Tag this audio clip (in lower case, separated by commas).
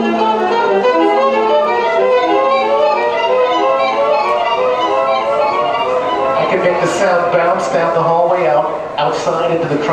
music, speech, musical instrument